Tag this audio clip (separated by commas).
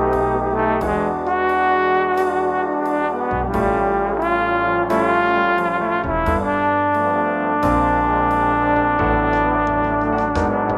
playing trombone